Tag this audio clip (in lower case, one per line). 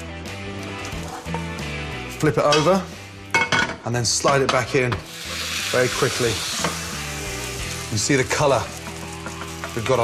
speech
inside a small room
music